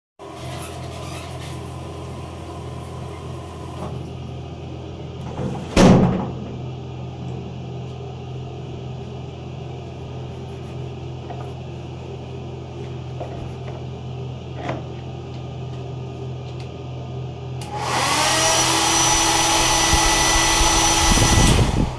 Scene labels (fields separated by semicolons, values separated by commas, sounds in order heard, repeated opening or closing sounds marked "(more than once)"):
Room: lavatory; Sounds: running water, door